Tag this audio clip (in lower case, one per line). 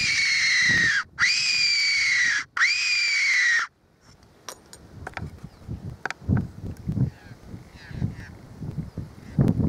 animal